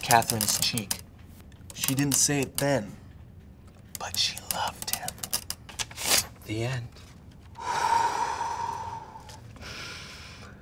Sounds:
speech
inside a small room

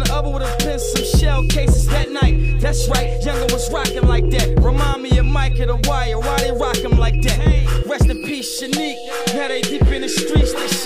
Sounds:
rapping
hip hop music

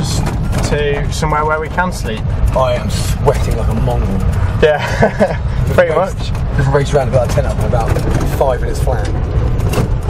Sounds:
car
speech
vehicle

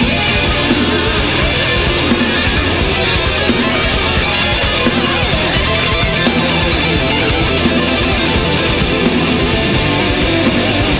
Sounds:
music
heavy metal

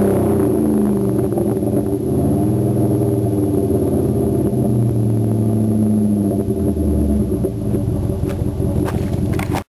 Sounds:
rattle

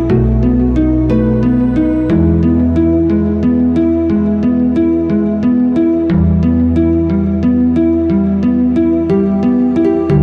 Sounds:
classical music
music

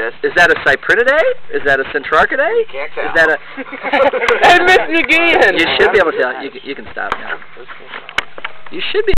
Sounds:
speech
outside, rural or natural

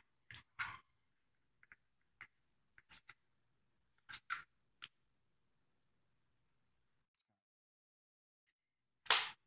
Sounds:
speech

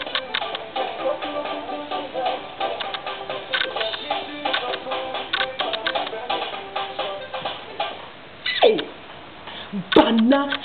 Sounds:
music
inside a small room
speech

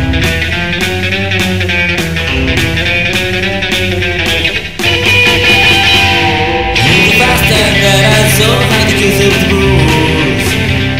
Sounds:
music

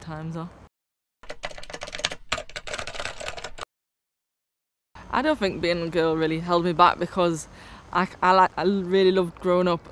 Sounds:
speech

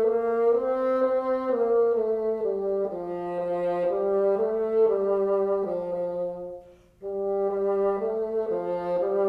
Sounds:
playing bassoon

